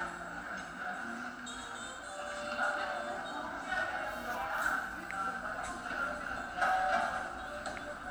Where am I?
in a cafe